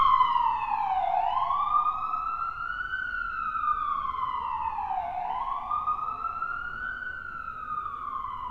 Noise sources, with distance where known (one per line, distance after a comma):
siren, near